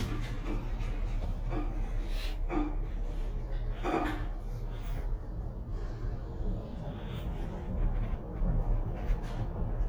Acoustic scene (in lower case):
elevator